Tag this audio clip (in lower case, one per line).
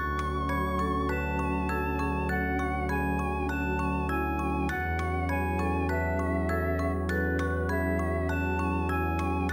music
new-age music